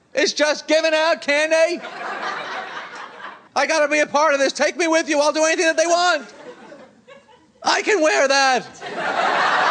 A man shouts while a group of people laugh